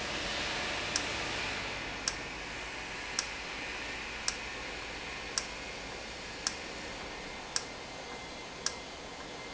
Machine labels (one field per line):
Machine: valve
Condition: normal